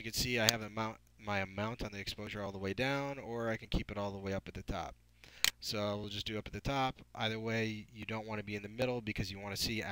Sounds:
Speech

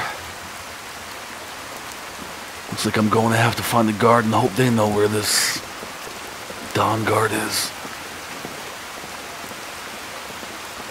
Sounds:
Rain, Speech, outside, rural or natural

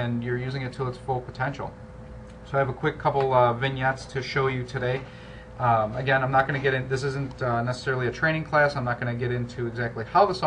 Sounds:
Speech

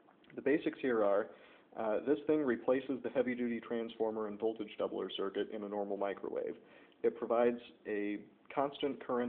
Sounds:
Speech

